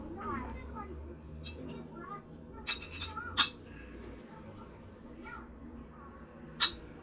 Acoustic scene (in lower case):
kitchen